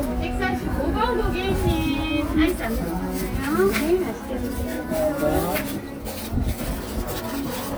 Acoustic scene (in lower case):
cafe